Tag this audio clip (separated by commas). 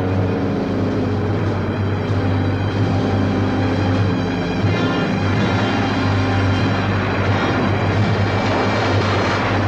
Music